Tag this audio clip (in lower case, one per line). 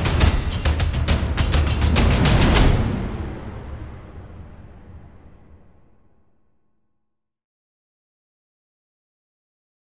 music